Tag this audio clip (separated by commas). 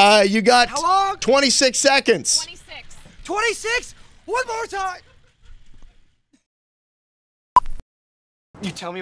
outside, urban or man-made, Speech